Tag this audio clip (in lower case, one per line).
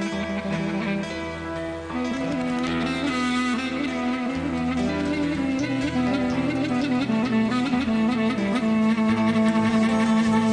music